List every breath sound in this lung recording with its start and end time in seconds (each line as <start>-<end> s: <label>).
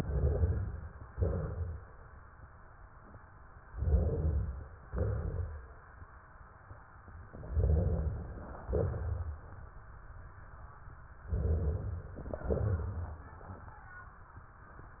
1.10-2.07 s: exhalation
3.66-4.78 s: inhalation
4.90-5.92 s: exhalation
7.32-8.39 s: inhalation
8.44-9.40 s: exhalation
11.27-12.19 s: inhalation
12.19-13.84 s: exhalation